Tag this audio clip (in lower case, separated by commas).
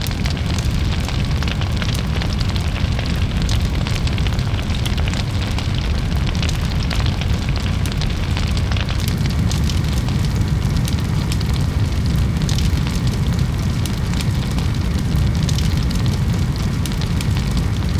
fire